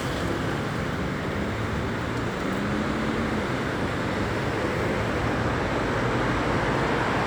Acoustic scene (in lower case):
street